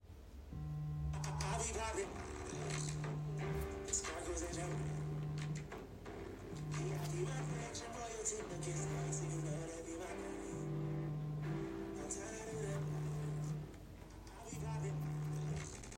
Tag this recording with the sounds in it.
phone ringing